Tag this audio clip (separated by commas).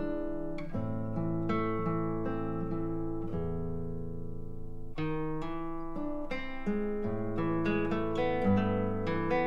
Music, Musical instrument